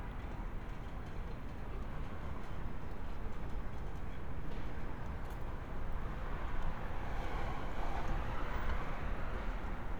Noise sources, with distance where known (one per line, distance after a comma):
background noise